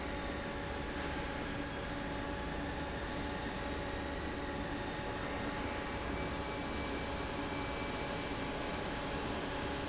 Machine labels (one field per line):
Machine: fan